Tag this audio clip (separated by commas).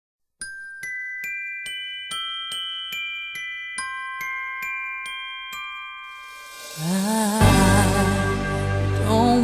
Music, Glockenspiel